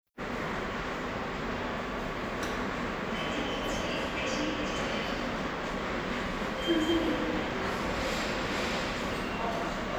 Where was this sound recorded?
in a subway station